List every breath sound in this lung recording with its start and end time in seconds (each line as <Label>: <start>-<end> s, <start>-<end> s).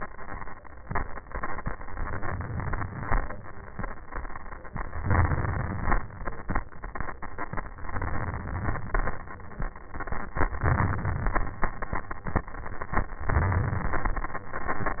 Inhalation: 1.97-3.09 s, 4.98-5.97 s, 7.84-8.79 s, 10.65-11.58 s, 13.29-15.00 s
Exhalation: 3.08-3.86 s, 5.98-6.68 s, 8.82-9.78 s, 11.56-12.49 s